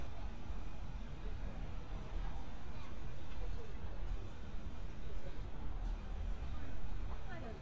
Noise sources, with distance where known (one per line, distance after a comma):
person or small group talking, far